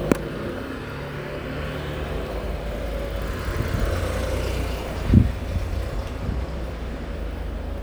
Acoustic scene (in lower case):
residential area